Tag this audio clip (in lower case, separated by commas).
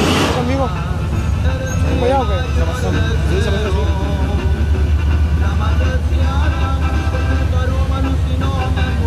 music, vehicle, speech